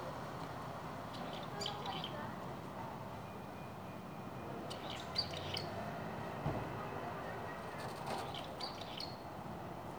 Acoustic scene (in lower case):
residential area